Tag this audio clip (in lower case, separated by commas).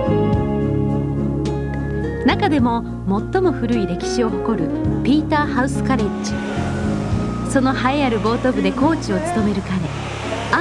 speech, music